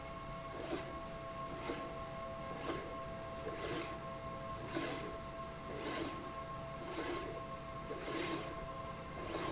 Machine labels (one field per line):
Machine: slide rail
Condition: abnormal